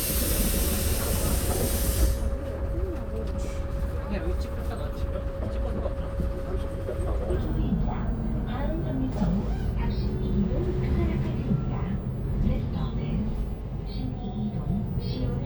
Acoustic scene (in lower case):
bus